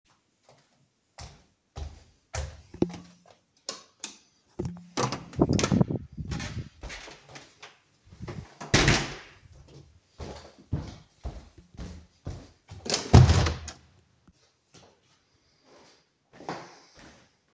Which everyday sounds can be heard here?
footsteps, light switch, door